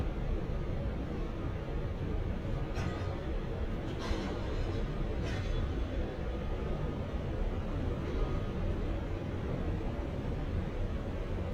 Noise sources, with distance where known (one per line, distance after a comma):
non-machinery impact